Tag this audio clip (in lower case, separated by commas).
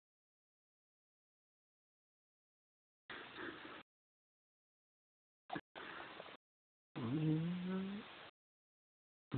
speech